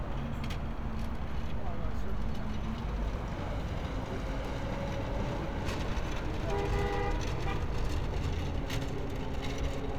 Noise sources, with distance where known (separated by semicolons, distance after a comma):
engine of unclear size